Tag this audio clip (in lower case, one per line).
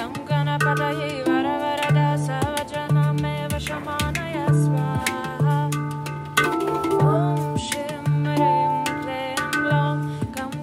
music
mantra